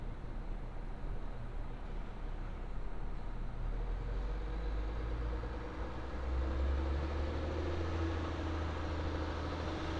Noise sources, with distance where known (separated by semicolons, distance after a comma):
large-sounding engine, near